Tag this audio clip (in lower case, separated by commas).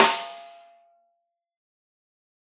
percussion, drum, snare drum, music, musical instrument